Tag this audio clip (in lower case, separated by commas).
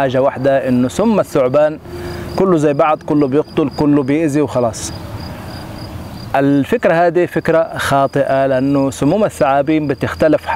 outside, rural or natural, animal, speech